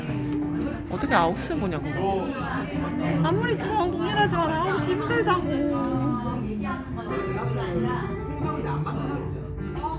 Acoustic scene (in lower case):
crowded indoor space